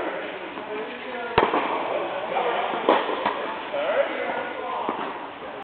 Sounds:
playing tennis

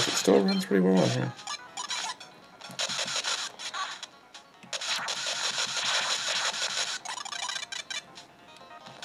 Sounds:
speech, inside a small room, music

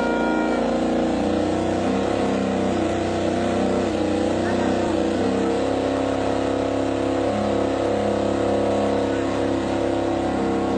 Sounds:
vehicle, revving

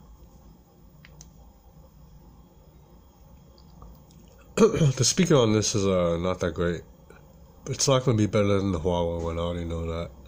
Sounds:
speech

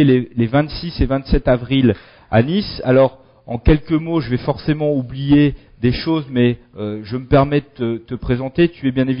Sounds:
speech

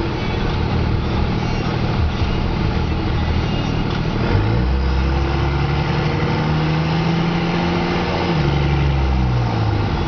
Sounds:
medium engine (mid frequency), vehicle

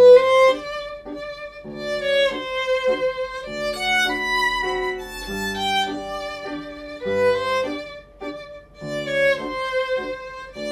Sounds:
fiddle, musical instrument, music

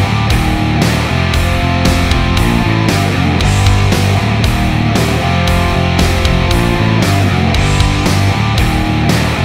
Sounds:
guitar, musical instrument, plucked string instrument, rock music, heavy metal, music

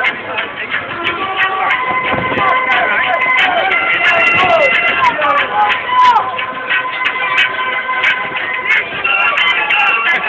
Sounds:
music, speech

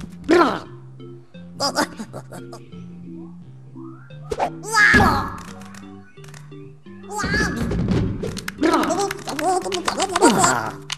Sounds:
inside a small room, music

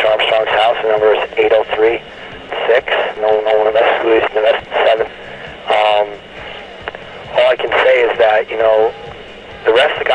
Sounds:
speech, inside a small room

